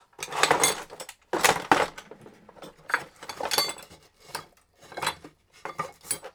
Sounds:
Tools

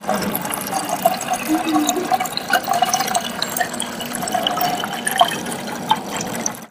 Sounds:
Pour, dribble, Liquid, Fill (with liquid)

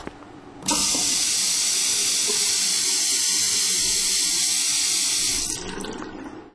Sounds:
Domestic sounds, Water tap

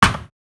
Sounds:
thud

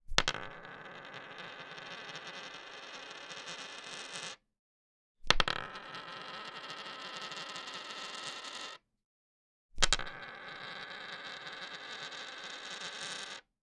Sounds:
Coin (dropping), Domestic sounds

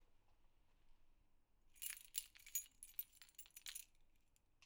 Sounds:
Keys jangling, Domestic sounds

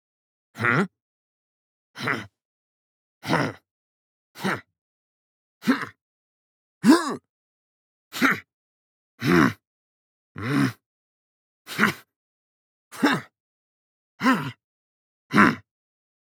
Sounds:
Human voice

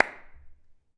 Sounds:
Clapping, Hands

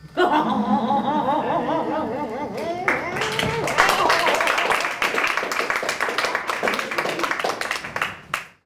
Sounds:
Laughter, Human group actions, Human voice, Applause

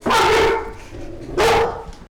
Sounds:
Animal, pets, Bark, Dog

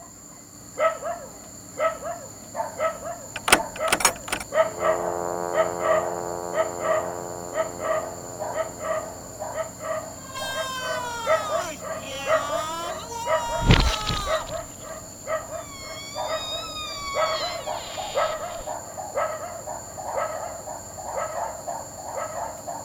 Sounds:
Domestic animals, Animal, Dog

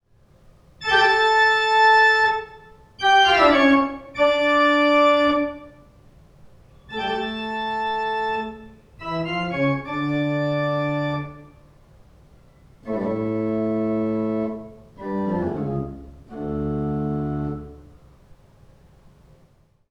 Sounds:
Keyboard (musical), Organ, Music, Musical instrument

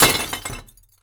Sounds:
Glass

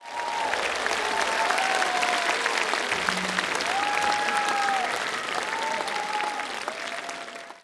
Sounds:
Human group actions, Applause

